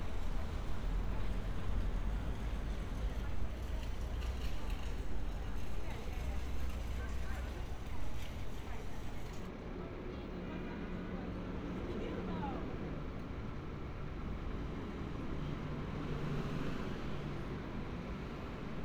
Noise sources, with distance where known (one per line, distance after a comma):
engine of unclear size
person or small group talking